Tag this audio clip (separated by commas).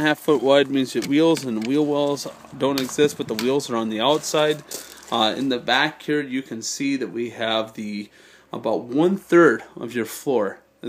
Speech